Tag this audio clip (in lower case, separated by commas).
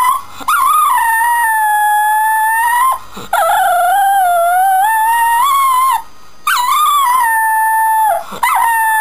animal, howl, domestic animals, dog